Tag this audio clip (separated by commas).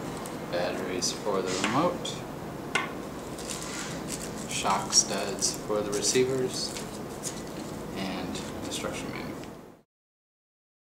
Speech